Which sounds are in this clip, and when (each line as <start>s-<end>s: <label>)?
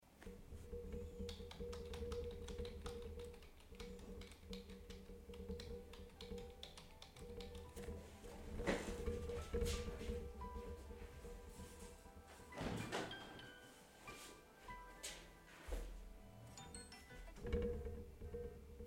1.0s-8.6s: keyboard typing
5.6s-18.6s: phone ringing
12.4s-13.7s: window